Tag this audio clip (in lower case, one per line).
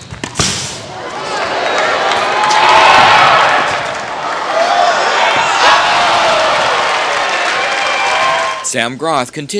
speech
slam